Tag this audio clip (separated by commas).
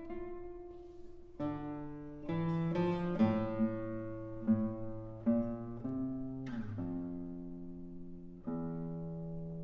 Pizzicato